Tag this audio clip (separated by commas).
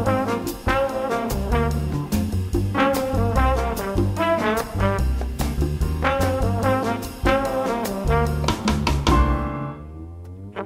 Music